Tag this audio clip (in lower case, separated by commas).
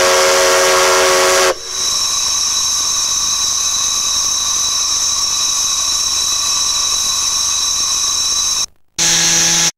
steam whistle, steam